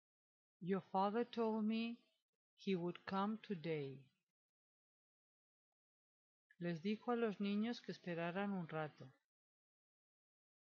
A woman is giving a speech